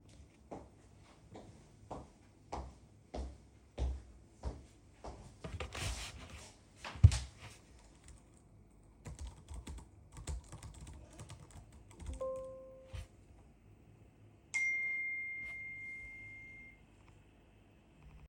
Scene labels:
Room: bedroom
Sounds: footsteps, keyboard typing, phone ringing

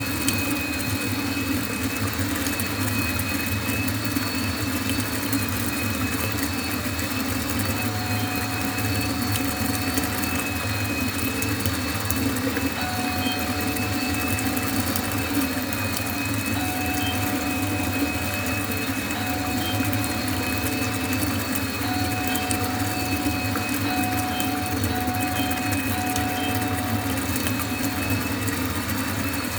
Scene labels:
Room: bathroom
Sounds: running water, vacuum cleaner, bell ringing

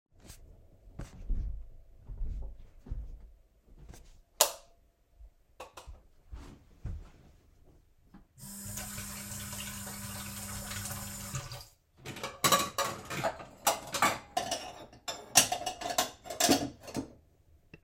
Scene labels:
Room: kitchen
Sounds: footsteps, light switch, running water, cutlery and dishes

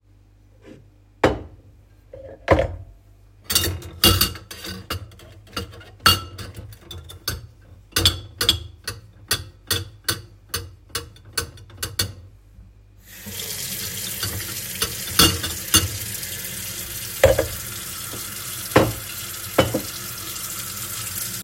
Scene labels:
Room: kitchen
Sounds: cutlery and dishes, running water

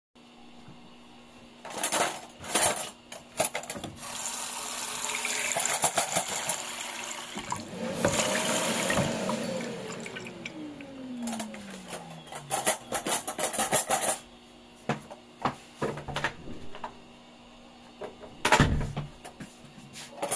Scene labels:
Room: kitchen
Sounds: cutlery and dishes, running water, vacuum cleaner, footsteps, door

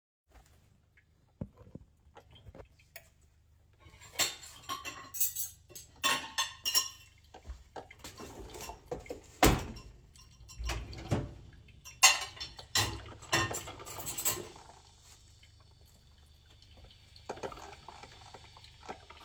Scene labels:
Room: kitchen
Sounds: coffee machine, cutlery and dishes

